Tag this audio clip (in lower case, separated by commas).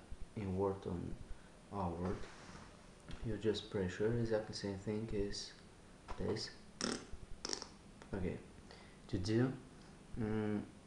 speech